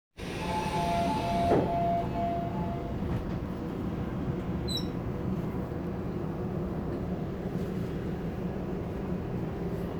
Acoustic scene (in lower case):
subway train